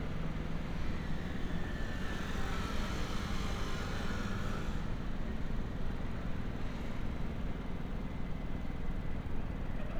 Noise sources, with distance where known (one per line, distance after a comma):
unidentified powered saw, far